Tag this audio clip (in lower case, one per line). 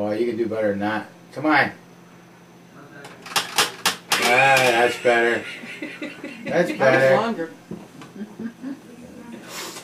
speech